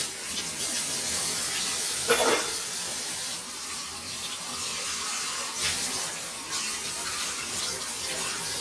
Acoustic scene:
kitchen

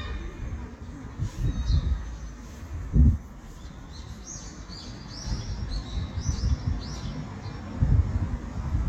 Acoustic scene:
residential area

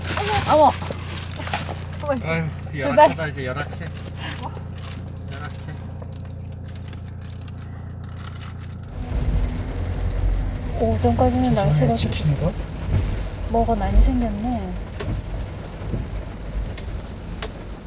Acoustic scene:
car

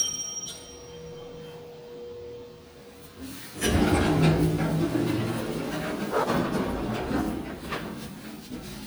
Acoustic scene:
elevator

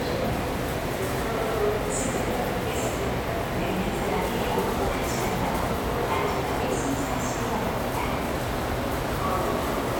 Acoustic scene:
subway station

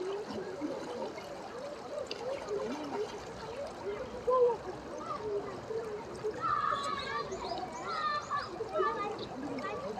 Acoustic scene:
park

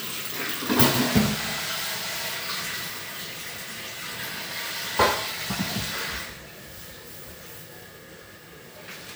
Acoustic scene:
restroom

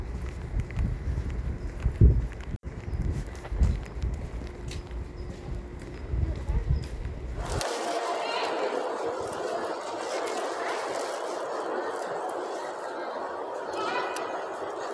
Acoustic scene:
residential area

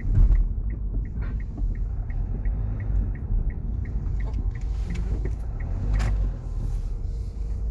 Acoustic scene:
car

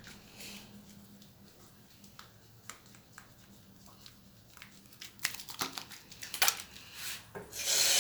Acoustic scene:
restroom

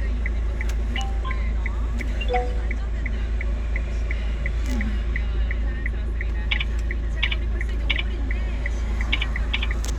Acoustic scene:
car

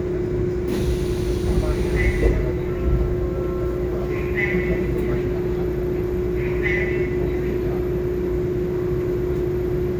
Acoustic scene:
subway train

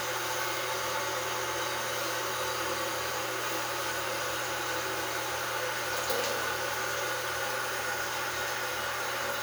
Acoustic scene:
restroom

